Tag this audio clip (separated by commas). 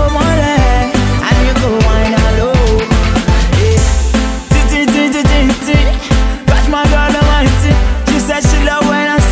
Music